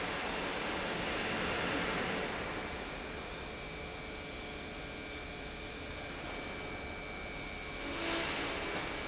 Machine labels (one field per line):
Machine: pump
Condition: normal